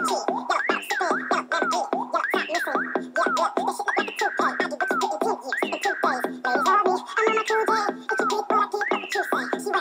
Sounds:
music, funny music

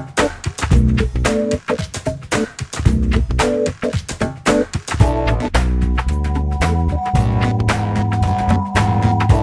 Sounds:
music

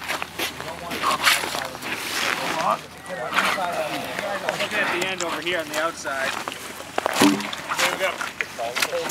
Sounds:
speech

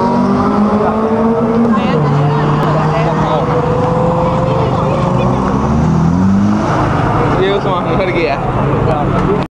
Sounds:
speech

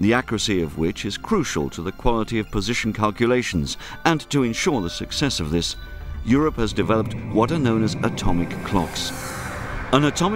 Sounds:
music, speech

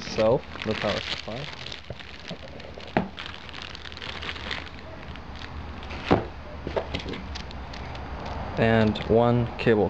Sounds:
outside, urban or man-made, speech

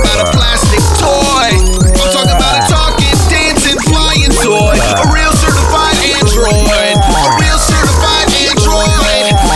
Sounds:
music

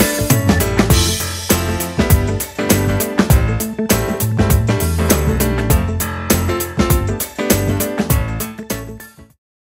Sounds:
music

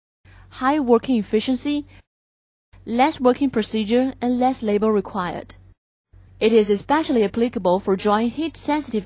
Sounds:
speech

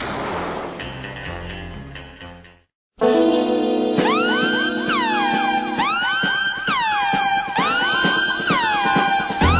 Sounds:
music

